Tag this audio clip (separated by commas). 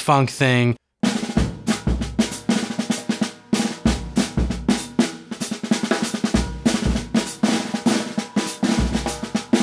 Speech, Music, Drum kit, Musical instrument, Drum